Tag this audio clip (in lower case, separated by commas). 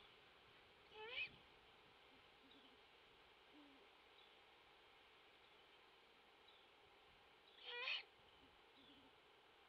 tweet, owl, bird vocalization, bird